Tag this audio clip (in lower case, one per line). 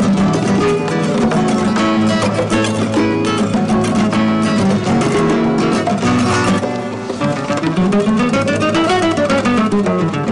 music